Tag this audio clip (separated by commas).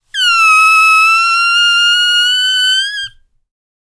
Squeak